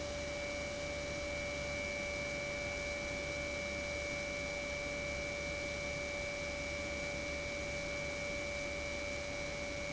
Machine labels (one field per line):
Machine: pump